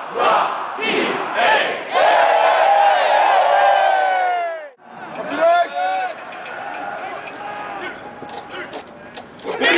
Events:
0.0s-9.7s: background noise
0.0s-0.5s: battle cry
0.7s-1.1s: battle cry
1.3s-1.8s: battle cry
1.9s-2.4s: battle cry
2.4s-4.7s: shout
4.8s-9.7s: crowd
5.2s-6.1s: man speaking
6.1s-6.9s: generic impact sounds
7.2s-7.4s: generic impact sounds
8.3s-8.5s: single-lens reflex camera
8.7s-8.9s: single-lens reflex camera
9.1s-9.3s: single-lens reflex camera
9.4s-9.5s: single-lens reflex camera
9.5s-9.7s: battle cry

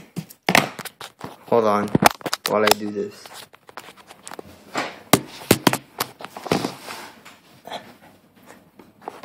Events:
0.0s-0.3s: generic impact sounds
0.4s-1.3s: generic impact sounds
1.5s-1.9s: man speaking
1.9s-2.5s: generic impact sounds
2.4s-3.1s: man speaking
2.6s-2.7s: generic impact sounds
3.2s-4.5s: generic impact sounds
4.7s-4.9s: generic impact sounds
5.1s-5.2s: generic impact sounds
5.5s-5.8s: generic impact sounds
5.9s-6.1s: generic impact sounds
6.2s-6.7s: generic impact sounds
6.7s-7.2s: scrape
7.2s-7.3s: generic impact sounds
7.6s-7.8s: generic impact sounds
8.3s-8.6s: generic impact sounds
8.7s-8.9s: generic impact sounds
9.0s-9.2s: generic impact sounds

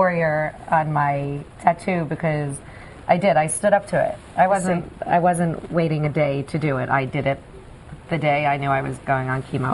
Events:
0.0s-0.5s: woman speaking
0.0s-9.7s: conversation
0.7s-1.4s: woman speaking
1.6s-2.6s: woman speaking
2.6s-3.0s: breathing
3.1s-4.2s: woman speaking
4.4s-4.9s: woman speaking
5.0s-7.4s: woman speaking
8.1s-9.4s: woman speaking
9.6s-9.7s: woman speaking

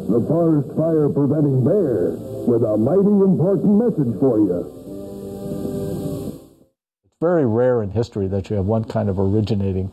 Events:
0.0s-2.1s: male speech
0.0s-6.7s: music
2.5s-4.6s: male speech
7.0s-7.2s: generic impact sounds
7.2s-9.9s: mechanisms
7.2s-9.9s: male speech

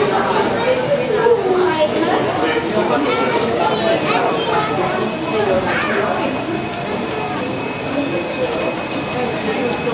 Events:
0.0s-9.9s: hubbub
0.0s-9.9s: truck
0.4s-3.0s: male speech
3.0s-5.1s: kid speaking
4.9s-6.3s: male speech
5.4s-5.5s: tick
5.8s-5.9s: tick
8.6s-8.6s: tick
9.8s-9.8s: tick

